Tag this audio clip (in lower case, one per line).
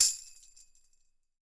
music
musical instrument
tambourine
percussion